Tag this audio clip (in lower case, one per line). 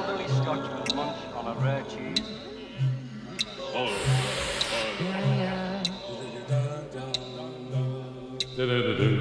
speech
music